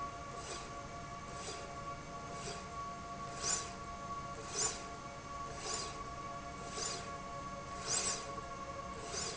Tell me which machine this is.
slide rail